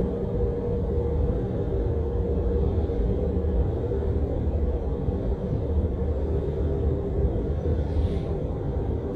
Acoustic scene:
bus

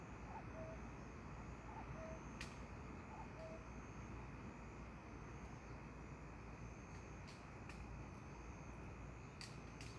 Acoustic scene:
park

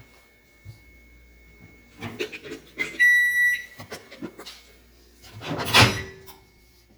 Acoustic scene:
kitchen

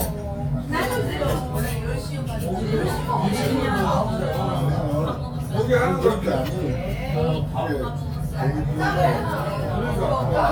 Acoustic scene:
restaurant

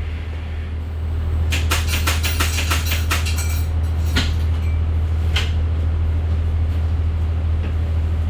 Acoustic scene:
bus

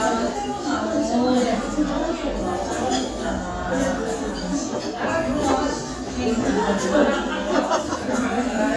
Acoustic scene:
restaurant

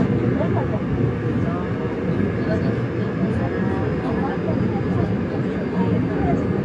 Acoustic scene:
subway train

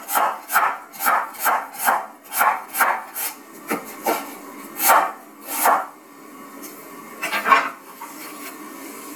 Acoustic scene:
kitchen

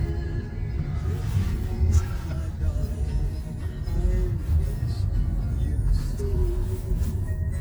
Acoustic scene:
car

